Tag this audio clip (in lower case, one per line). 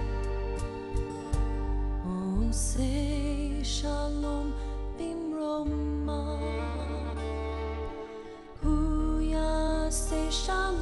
music
christmas music